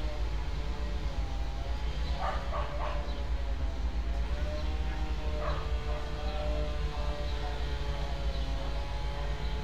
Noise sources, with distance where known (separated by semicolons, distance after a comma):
dog barking or whining, far